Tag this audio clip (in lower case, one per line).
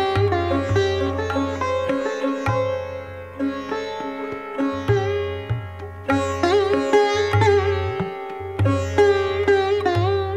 playing sitar